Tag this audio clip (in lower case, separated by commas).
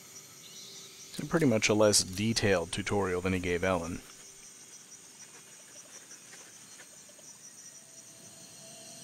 outside, rural or natural, speech